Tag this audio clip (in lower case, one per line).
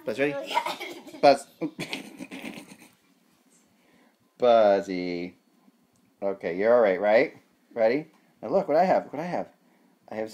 speech